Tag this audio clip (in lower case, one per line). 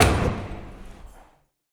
domestic sounds
door